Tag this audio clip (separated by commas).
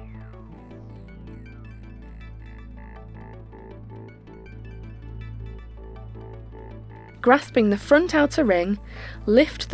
Music, Speech